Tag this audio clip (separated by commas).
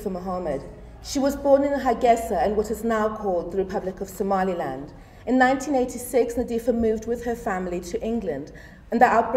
woman speaking, Speech